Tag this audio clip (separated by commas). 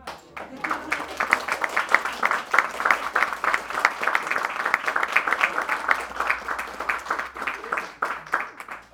Human group actions, Applause